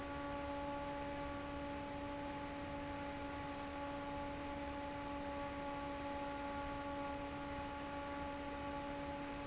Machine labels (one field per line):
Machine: fan